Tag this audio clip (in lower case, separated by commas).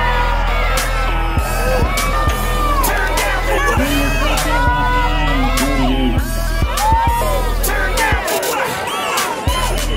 music, outside, urban or man-made, speech